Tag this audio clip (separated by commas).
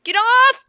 Yell, Shout, Human voice